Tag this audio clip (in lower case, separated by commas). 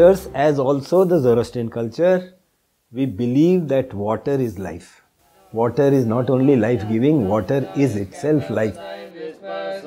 speech